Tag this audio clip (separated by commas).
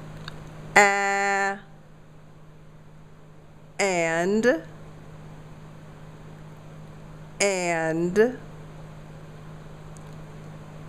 Speech